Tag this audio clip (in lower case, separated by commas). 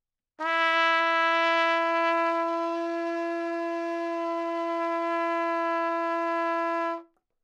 brass instrument, trumpet, musical instrument, music